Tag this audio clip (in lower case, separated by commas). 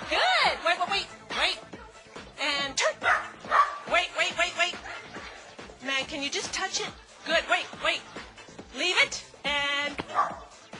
bow-wow, domestic animals, animal, speech, music, dog